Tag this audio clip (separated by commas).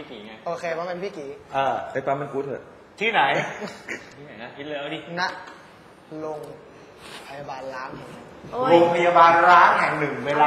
Speech